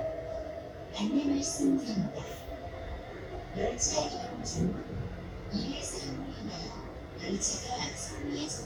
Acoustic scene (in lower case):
subway train